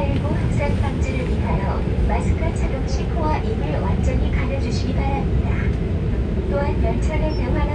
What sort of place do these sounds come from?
subway train